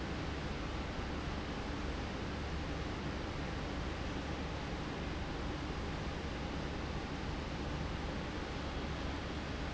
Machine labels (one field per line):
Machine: fan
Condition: abnormal